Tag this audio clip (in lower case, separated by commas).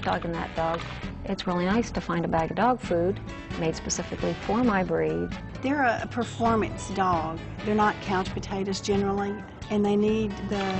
music, speech